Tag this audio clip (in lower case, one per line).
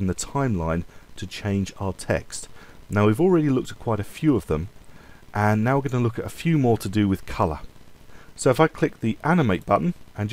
speech